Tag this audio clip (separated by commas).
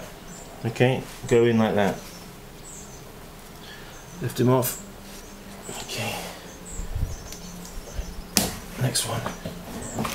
outside, rural or natural, Coo, Speech